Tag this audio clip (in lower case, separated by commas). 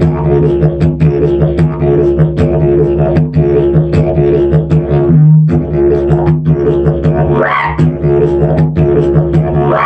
playing didgeridoo